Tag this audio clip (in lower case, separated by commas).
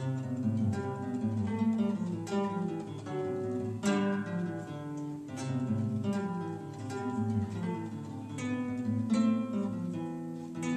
plucked string instrument, acoustic guitar, music, musical instrument, guitar